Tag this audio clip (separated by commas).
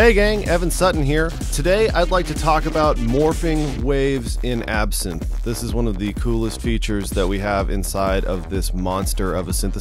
Speech, Music